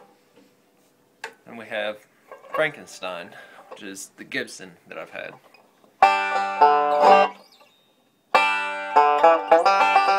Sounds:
plucked string instrument, musical instrument, banjo, music, speech

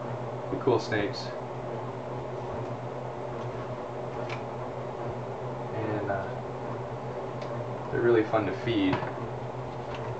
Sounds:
snake, speech, animal, inside a small room

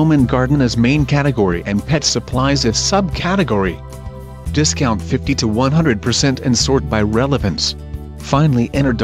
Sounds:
speech, music

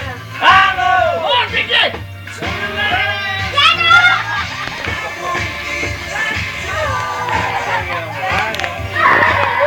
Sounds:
dishes, pots and pans, music, speech

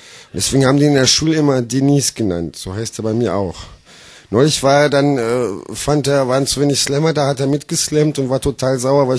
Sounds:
speech

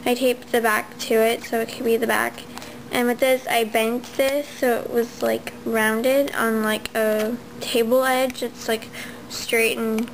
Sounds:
speech

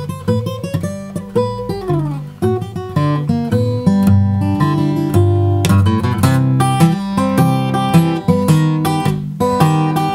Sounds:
music, guitar, musical instrument, plucked string instrument

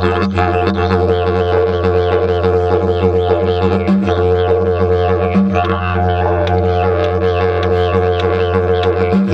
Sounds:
playing didgeridoo

